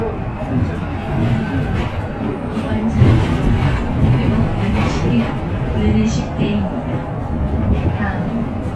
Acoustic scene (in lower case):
bus